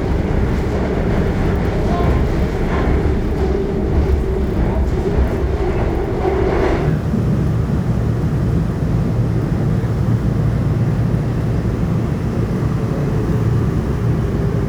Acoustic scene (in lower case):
subway train